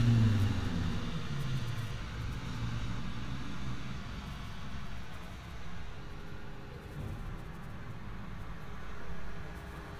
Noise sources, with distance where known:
engine of unclear size, far

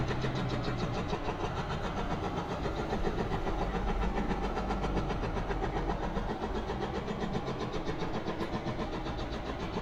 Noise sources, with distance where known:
hoe ram

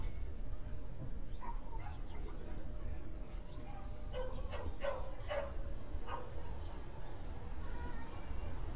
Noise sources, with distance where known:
dog barking or whining, near

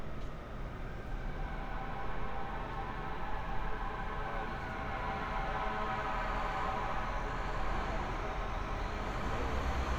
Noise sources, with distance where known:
large-sounding engine, near
siren

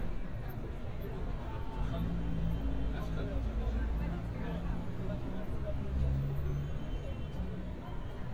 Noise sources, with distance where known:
person or small group talking, near

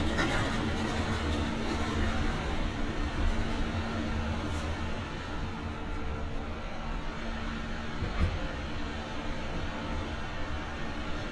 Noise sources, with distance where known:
engine of unclear size, near

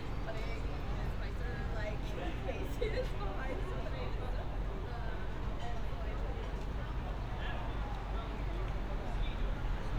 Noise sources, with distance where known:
person or small group talking, near

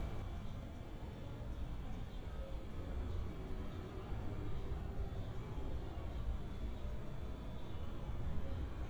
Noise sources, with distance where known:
background noise

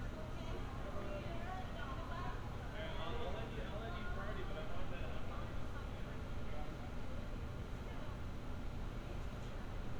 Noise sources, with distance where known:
person or small group talking

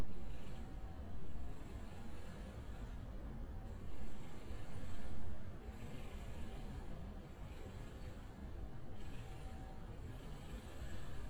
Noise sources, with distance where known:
unidentified impact machinery, far

